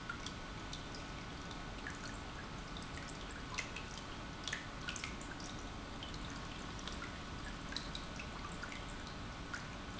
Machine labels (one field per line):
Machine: pump